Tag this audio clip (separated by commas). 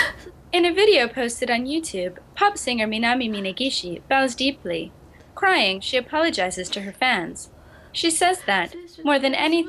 Speech